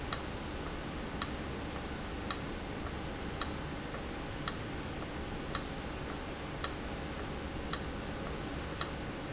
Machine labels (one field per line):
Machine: valve